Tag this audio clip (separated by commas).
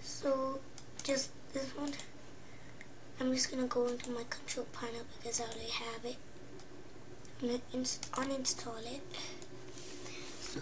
Speech